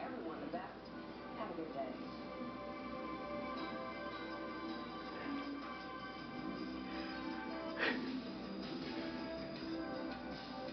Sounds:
music
speech

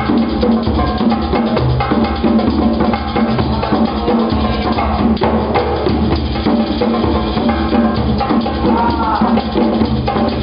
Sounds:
percussion
music

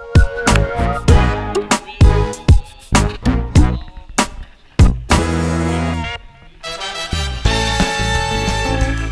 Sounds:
music

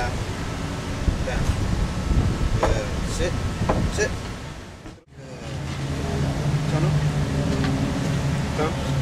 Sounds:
speech

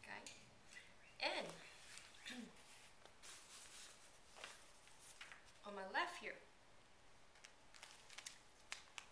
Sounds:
inside a small room
speech

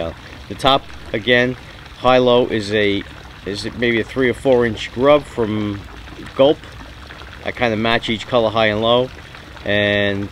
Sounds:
speech

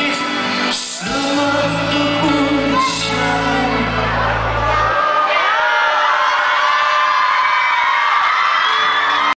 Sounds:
music
male singing

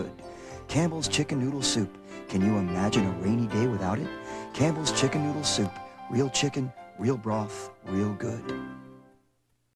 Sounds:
speech
music

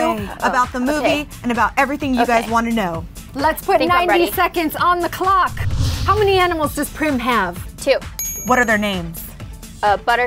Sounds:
music
speech

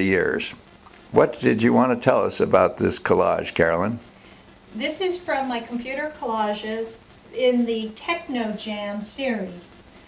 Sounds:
speech

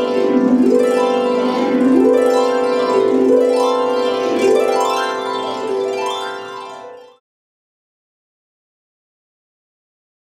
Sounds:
playing harp

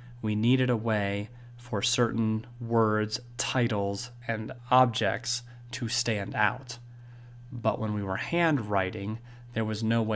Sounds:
speech

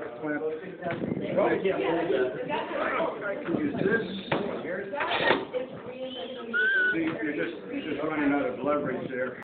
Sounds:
speech

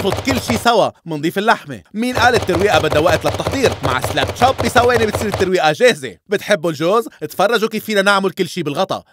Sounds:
chopping (food)

